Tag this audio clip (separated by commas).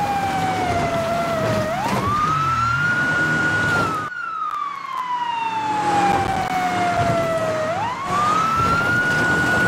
Motor vehicle (road), Police car (siren), Car, Vehicle